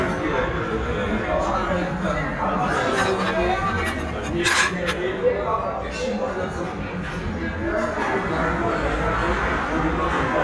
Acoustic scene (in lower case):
crowded indoor space